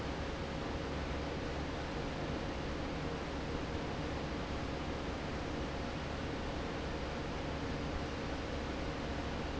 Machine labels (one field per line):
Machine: fan